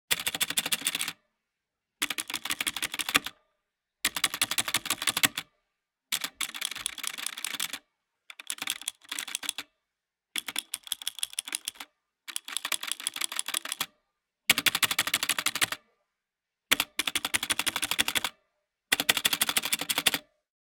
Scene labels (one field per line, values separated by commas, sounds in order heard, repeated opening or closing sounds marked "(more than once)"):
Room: office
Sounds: keyboard typing